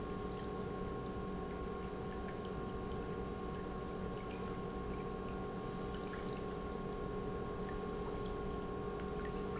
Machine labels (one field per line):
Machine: pump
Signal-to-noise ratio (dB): 0 dB